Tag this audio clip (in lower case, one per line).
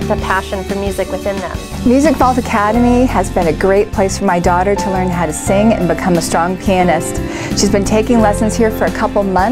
speech
music
tender music